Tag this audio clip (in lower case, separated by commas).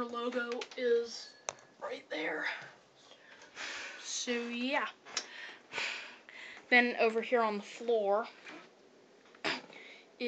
speech